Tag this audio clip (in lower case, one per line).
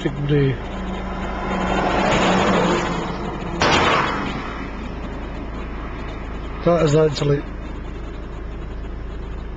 speech